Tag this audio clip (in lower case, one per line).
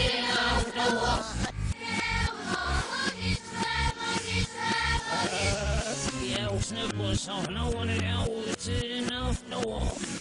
music